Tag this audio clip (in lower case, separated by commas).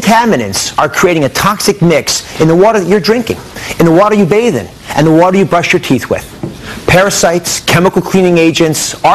speech